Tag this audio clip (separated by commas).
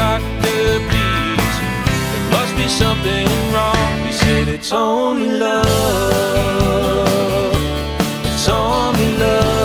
Christian music, Music